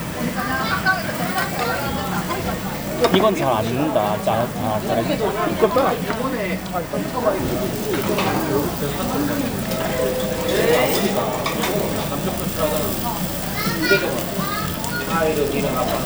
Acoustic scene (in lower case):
restaurant